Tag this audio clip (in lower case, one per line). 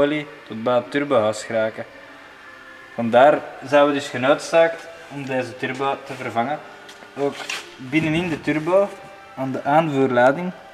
speech